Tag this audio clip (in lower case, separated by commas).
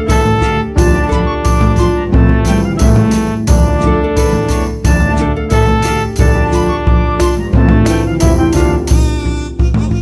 music